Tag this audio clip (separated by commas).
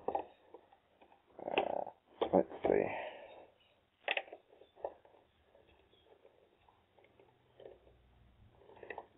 Speech, inside a small room